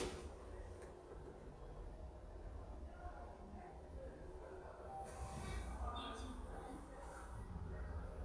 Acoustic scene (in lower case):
elevator